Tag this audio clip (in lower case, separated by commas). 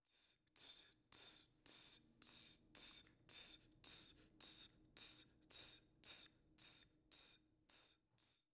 hiss